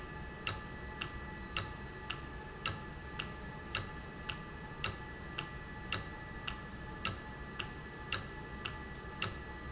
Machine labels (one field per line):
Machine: valve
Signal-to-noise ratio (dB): 0 dB